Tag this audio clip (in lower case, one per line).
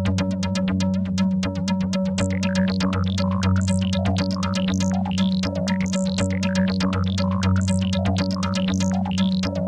electronic music
music